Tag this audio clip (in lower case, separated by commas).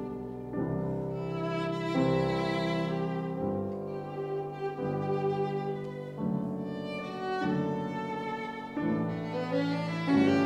violin, music, musical instrument